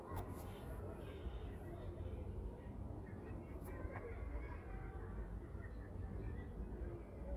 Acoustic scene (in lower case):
residential area